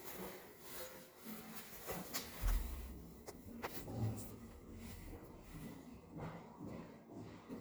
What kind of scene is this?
elevator